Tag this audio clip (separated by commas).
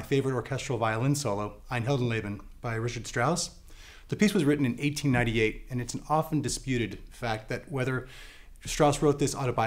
Speech